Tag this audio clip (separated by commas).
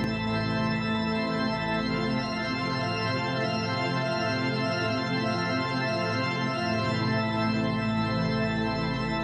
playing electronic organ